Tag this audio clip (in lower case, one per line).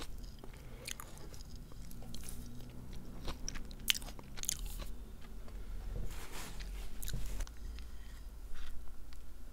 people eating crisps